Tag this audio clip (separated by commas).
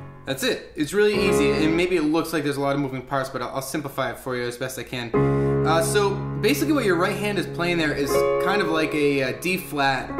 Music, Speech